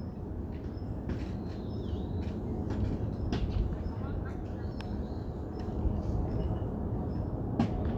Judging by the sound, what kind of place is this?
residential area